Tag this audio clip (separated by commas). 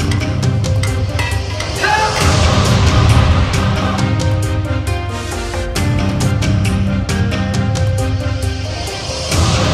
Music, Speech